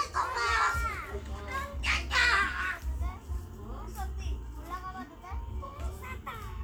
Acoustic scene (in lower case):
park